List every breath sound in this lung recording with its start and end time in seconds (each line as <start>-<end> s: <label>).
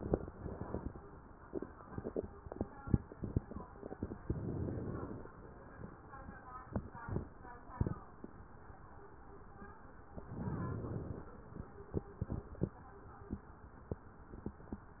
4.21-5.28 s: inhalation
10.24-11.31 s: inhalation